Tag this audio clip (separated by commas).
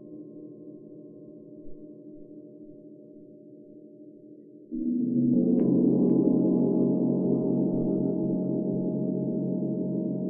playing gong